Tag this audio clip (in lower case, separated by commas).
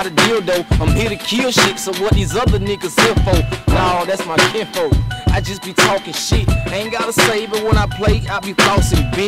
music